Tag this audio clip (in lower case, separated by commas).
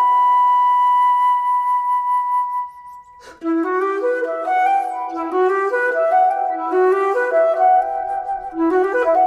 flute, playing flute, woodwind instrument